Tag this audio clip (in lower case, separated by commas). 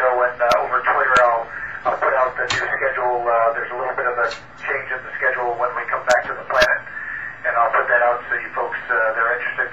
radio, speech